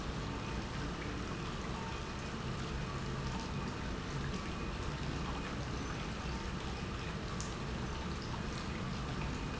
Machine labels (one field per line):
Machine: pump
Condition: normal